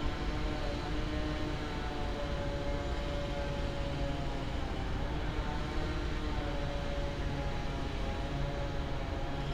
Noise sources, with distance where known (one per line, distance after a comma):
rock drill, far